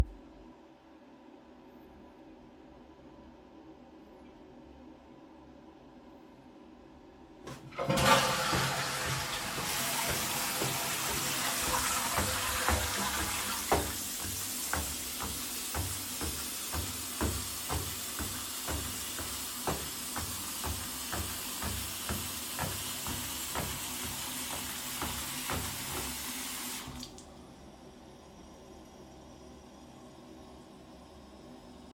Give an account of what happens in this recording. This is a bonus scene. I was walking in the bathroom. I flushed the toilet and turned on the sink water while I was still moving.